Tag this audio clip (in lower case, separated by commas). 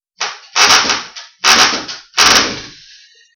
power tool, tools, drill